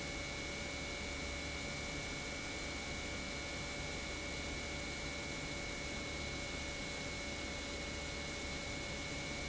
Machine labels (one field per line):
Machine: pump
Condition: normal